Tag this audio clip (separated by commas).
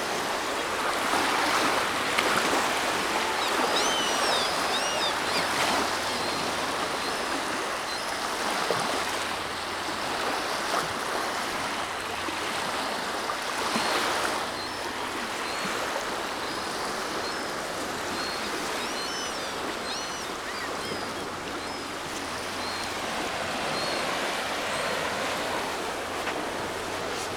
Water, surf, Ocean